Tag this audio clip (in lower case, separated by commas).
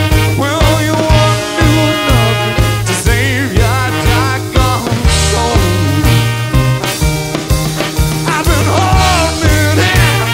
swing music, music, singing